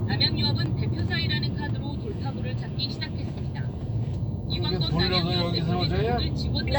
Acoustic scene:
car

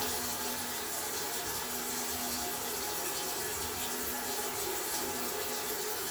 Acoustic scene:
restroom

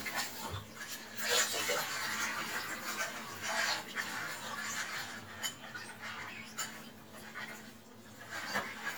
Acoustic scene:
kitchen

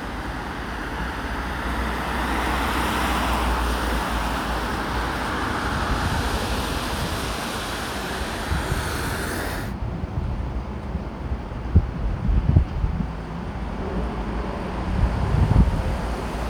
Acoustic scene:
street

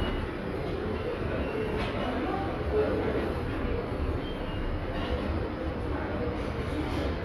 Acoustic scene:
subway station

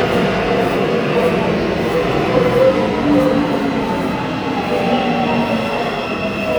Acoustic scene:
subway station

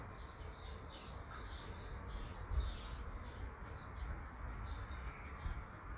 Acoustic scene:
park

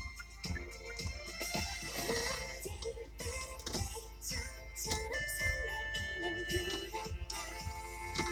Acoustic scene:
car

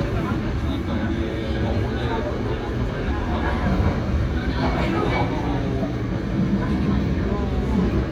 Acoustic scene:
subway train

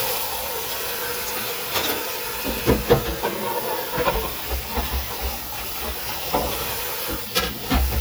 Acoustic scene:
kitchen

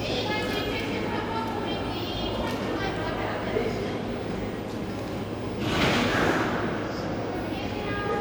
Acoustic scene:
cafe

